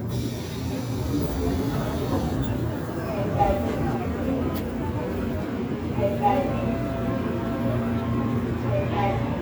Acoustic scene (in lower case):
subway train